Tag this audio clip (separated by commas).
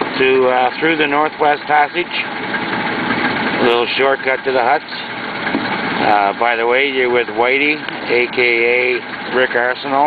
Vehicle, outside, rural or natural, Speech